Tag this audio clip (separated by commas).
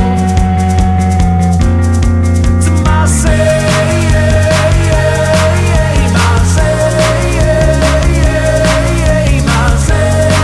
Independent music, Music, Hip hop music